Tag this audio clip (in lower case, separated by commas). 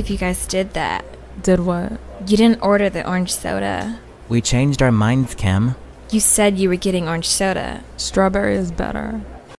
speech